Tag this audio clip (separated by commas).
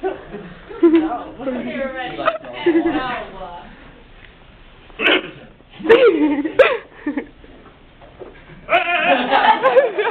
Speech